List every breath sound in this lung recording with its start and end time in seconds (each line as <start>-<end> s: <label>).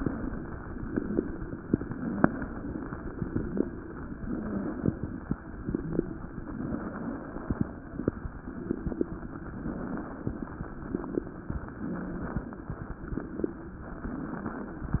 0.00-0.80 s: exhalation
0.00-0.81 s: crackles
0.82-1.64 s: crackles
0.86-1.67 s: inhalation
1.97-2.86 s: crackles
1.99-2.89 s: exhalation
3.16-4.05 s: crackles
3.16-4.06 s: inhalation
4.30-5.21 s: exhalation
4.32-5.21 s: crackles
5.37-6.26 s: crackles
5.39-6.29 s: inhalation
6.45-7.36 s: exhalation
6.45-7.71 s: crackles
6.45-7.72 s: exhalation
8.37-9.40 s: crackles
8.38-9.39 s: inhalation
9.49-10.38 s: crackles
9.49-10.39 s: exhalation
10.56-11.56 s: inhalation
10.58-11.53 s: crackles
11.76-12.71 s: crackles
11.80-12.71 s: exhalation
12.79-13.82 s: crackles
12.81-13.81 s: inhalation
13.91-15.00 s: crackles